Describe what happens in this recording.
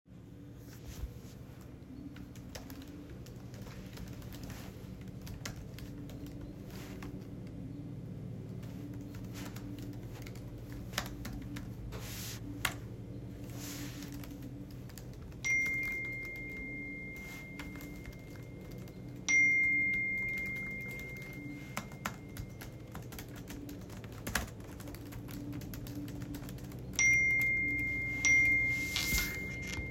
I was typing on my laptop doing Assignemnts then , I received notifications on my phone ,I then picked my phone.